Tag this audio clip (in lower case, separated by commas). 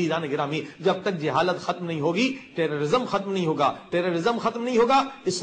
speech